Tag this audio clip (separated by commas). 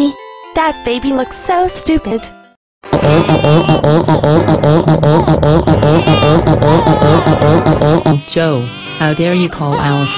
Speech, Music